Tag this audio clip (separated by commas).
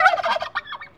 livestock, Animal, Fowl